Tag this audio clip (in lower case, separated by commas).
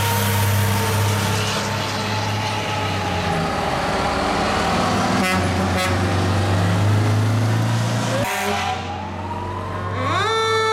vehicle, fire engine